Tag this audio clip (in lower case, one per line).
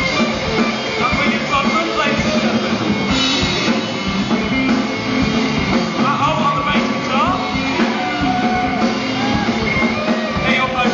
speech
music
yell
rock music